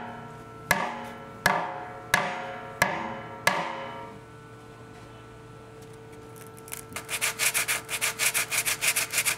A hammer bangs and then wood is sanded